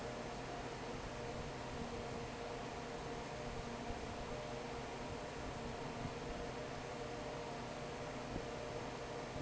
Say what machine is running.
fan